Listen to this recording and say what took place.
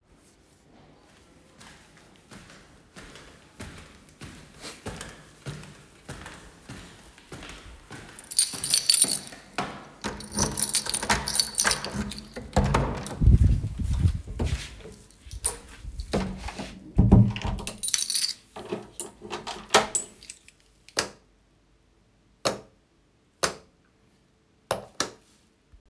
I walked along the hallway then I started finding the right key for the door. Next I opened the door, came into my living room and locked the door. At the end I toggled couple of times a light switch.